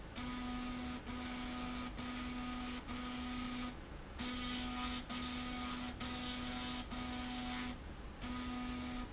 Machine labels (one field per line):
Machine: slide rail